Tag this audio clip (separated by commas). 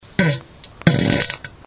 Fart